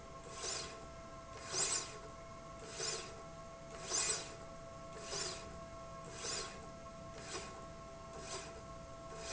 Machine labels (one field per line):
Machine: slide rail